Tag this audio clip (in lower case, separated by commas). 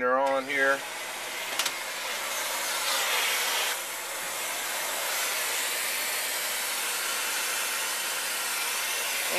inside a small room, speech, vacuum cleaner